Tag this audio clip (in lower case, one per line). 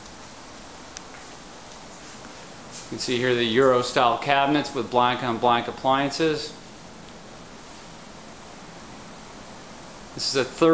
speech